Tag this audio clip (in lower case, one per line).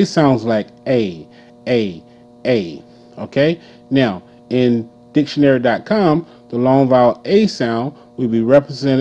speech